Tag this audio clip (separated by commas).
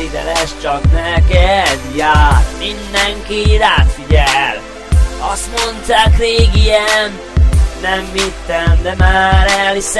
Music